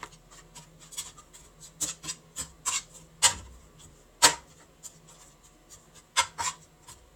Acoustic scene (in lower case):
kitchen